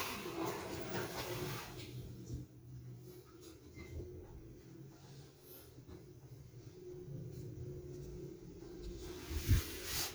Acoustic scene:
elevator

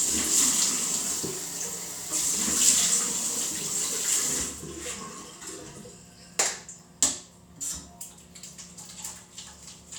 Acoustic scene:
restroom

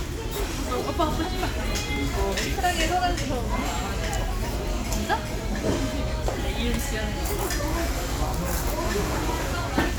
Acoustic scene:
restaurant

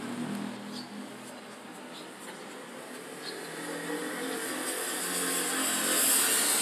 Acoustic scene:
residential area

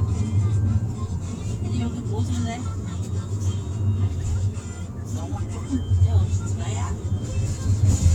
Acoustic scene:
car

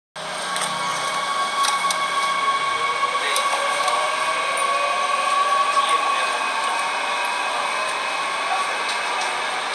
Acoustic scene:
subway train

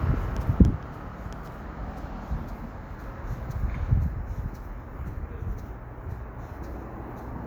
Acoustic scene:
street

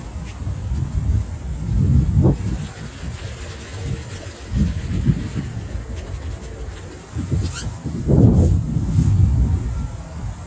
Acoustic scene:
residential area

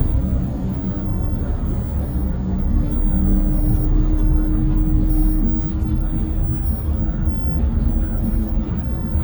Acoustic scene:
bus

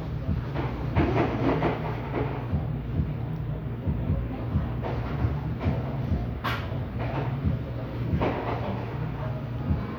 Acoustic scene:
cafe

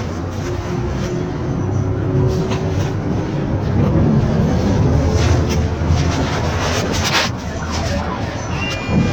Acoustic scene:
bus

